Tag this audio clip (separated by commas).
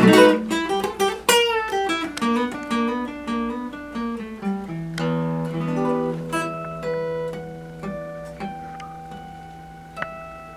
Music, Musical instrument, Acoustic guitar, Plucked string instrument, Guitar